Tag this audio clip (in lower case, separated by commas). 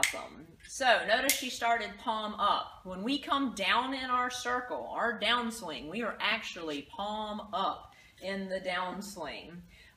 speech